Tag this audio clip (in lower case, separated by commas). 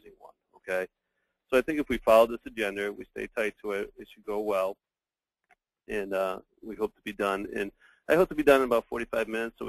speech